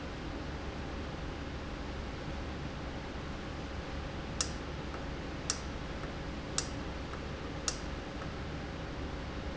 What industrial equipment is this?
valve